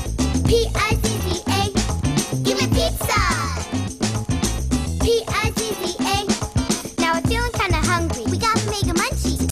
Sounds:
Music

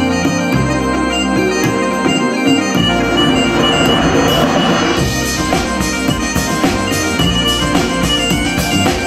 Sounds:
Electronic organ, Organ

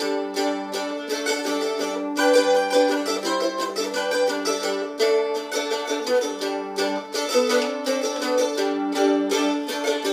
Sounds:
playing mandolin

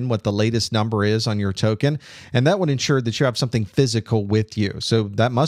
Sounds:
Speech

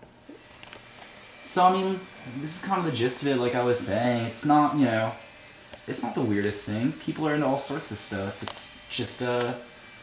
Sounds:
Speech, inside a small room

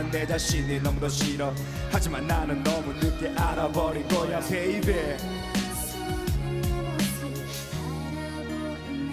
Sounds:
Funk, Music, Soul music

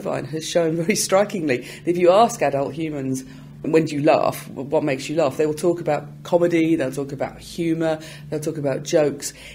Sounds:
Speech

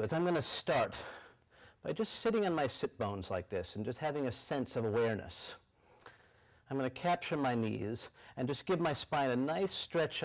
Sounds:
Speech

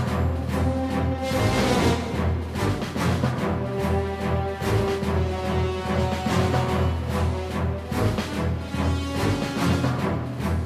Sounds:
Music

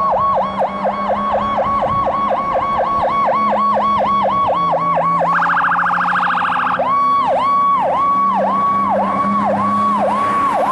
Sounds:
Truck, Engine, Vehicle, Siren

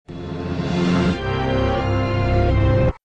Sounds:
Music, Television

